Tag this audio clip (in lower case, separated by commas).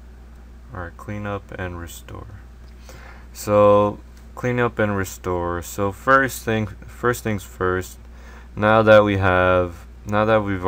speech